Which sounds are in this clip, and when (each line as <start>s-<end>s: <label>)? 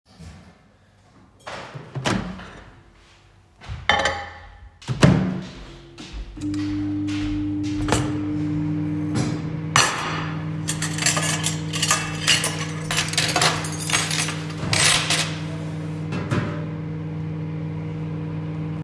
1.4s-2.9s: microwave
1.4s-7.9s: footsteps
3.8s-18.8s: microwave
3.8s-4.6s: cutlery and dishes
7.8s-8.1s: cutlery and dishes
9.6s-15.5s: cutlery and dishes
16.2s-16.6s: wardrobe or drawer